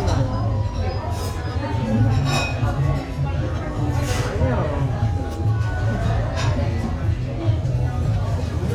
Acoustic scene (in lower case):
restaurant